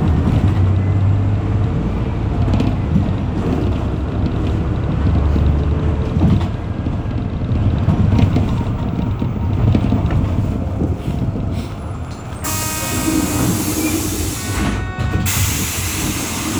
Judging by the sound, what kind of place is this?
bus